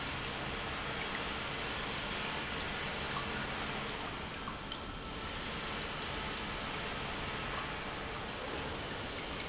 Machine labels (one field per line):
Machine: pump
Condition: normal